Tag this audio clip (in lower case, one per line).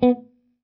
musical instrument
plucked string instrument
guitar
music